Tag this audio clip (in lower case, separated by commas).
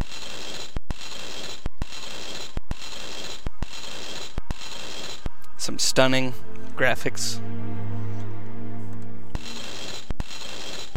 music, speech